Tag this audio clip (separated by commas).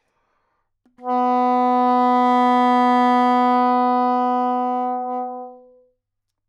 Music, Musical instrument, woodwind instrument